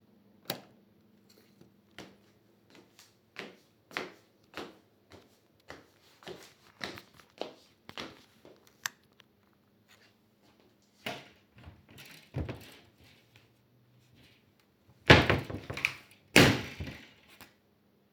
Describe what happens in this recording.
I entered the room and turned on the light switch. I walked across the room toward the wardrobe. The wardrobe door was opened and then closed again.